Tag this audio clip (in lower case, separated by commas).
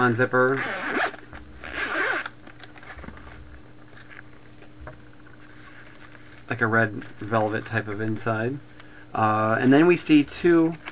speech